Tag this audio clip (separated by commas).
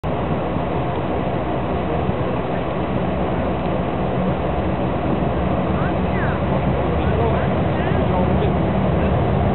Speech, Aircraft